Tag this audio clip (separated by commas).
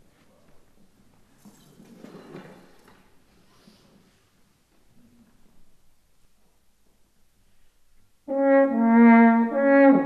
Music, Trombone, French horn, Brass instrument, Trumpet